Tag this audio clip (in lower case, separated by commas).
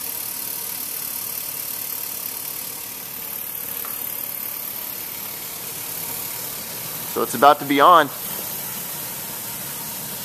speech, inside a large room or hall